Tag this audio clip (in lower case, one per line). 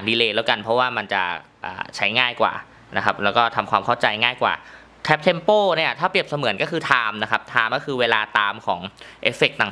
speech